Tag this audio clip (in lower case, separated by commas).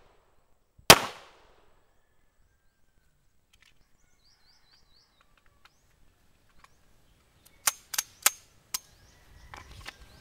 gunfire